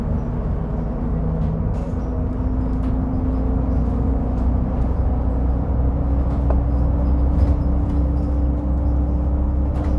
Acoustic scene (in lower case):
bus